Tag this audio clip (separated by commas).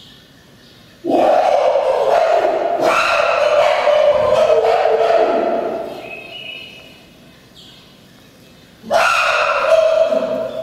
chimpanzee pant-hooting